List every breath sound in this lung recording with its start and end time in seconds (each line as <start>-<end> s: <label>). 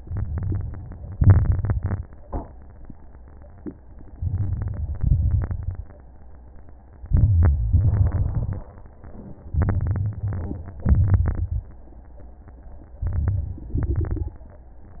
0.00-1.09 s: inhalation
0.00-1.09 s: crackles
1.09-2.02 s: exhalation
1.09-2.02 s: crackles
4.13-4.98 s: inhalation
4.13-4.98 s: crackles
4.99-5.84 s: exhalation
4.99-5.84 s: crackles
7.10-7.72 s: inhalation
7.10-7.72 s: crackles
7.75-8.65 s: exhalation
7.75-8.65 s: crackles
9.55-10.70 s: inhalation
9.55-10.70 s: crackles
10.81-11.68 s: exhalation
10.81-11.68 s: crackles
13.01-13.75 s: inhalation
13.01-13.75 s: crackles
13.75-14.49 s: exhalation
13.75-14.49 s: crackles